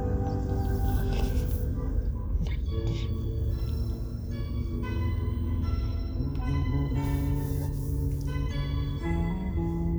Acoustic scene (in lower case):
car